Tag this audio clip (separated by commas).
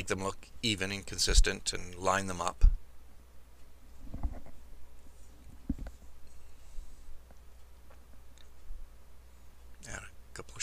Speech, inside a small room